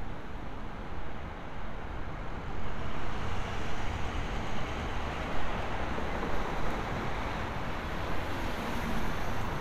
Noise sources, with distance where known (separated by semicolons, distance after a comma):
medium-sounding engine, far